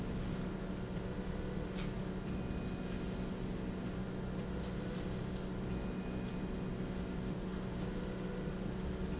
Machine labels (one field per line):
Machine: slide rail